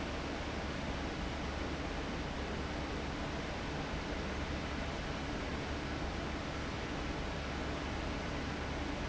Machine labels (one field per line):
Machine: fan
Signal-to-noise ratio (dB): -6 dB